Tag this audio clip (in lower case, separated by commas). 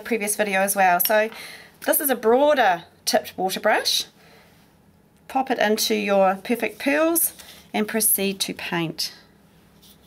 speech, inside a small room